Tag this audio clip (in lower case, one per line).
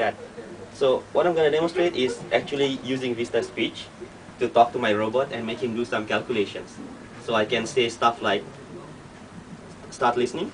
man speaking
speech
narration